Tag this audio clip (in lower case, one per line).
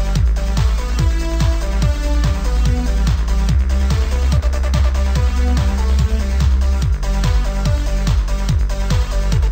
music
video game music